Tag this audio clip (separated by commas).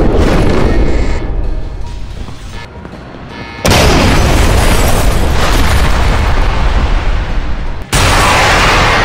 Music, Boom